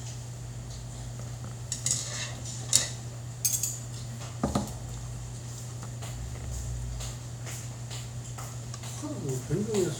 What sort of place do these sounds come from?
restaurant